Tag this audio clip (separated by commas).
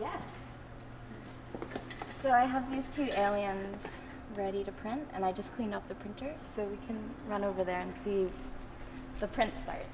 Speech